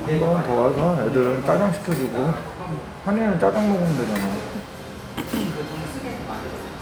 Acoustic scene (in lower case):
crowded indoor space